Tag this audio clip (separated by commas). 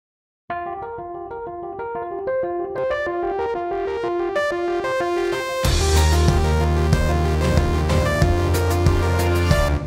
Music